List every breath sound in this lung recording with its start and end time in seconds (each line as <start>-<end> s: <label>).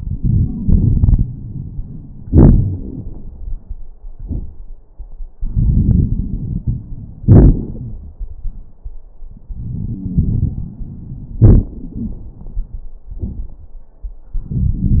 0.00-2.26 s: inhalation
0.00-2.26 s: crackles
2.23-3.90 s: exhalation
2.26-3.90 s: crackles
5.36-7.21 s: inhalation
5.36-7.21 s: crackles
7.23-9.09 s: exhalation
7.23-9.09 s: crackles
9.44-11.41 s: inhalation
9.44-11.41 s: wheeze
11.39-12.93 s: exhalation
11.77-12.21 s: wheeze